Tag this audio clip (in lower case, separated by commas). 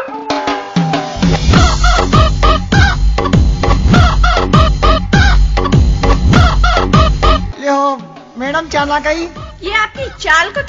outside, urban or man-made, music, speech